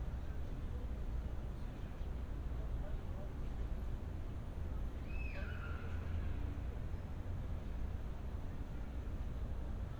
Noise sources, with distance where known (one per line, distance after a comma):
unidentified human voice, far